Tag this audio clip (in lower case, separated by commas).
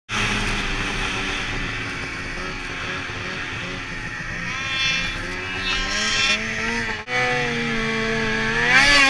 driving snowmobile